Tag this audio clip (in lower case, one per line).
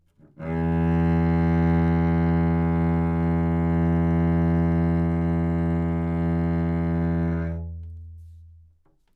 musical instrument
bowed string instrument
music